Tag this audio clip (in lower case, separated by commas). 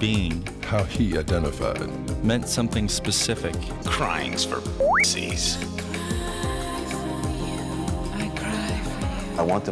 speech, music